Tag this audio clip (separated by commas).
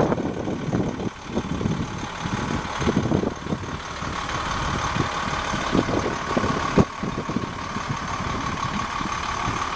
Medium engine (mid frequency), Idling, Engine, Vehicle